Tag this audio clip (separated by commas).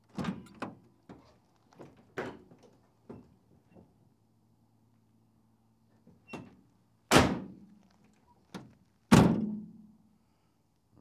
Motor vehicle (road), Vehicle